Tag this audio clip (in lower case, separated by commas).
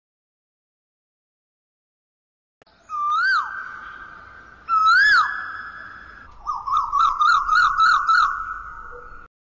outside, rural or natural